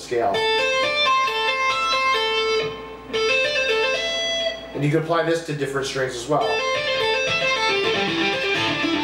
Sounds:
tapping guitar

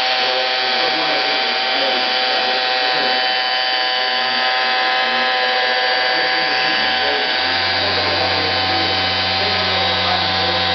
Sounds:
Tools, Power tool

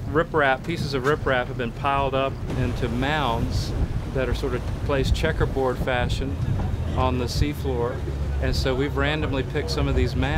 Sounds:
Speech

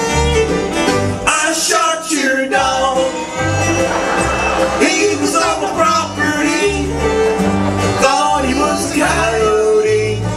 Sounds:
Music

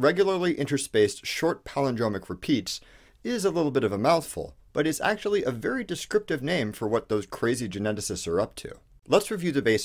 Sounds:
Speech

